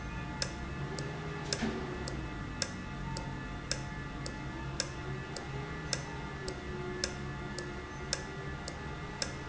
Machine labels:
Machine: valve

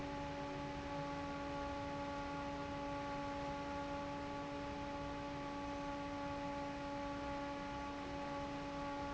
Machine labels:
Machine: fan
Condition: normal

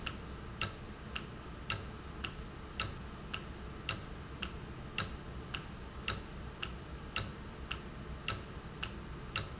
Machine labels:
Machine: valve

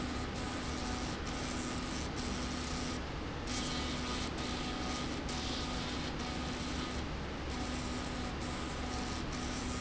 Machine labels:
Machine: slide rail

